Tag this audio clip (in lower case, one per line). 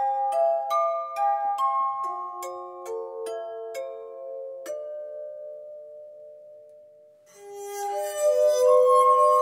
music
glass